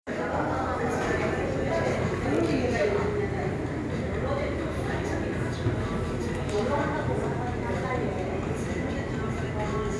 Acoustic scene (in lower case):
cafe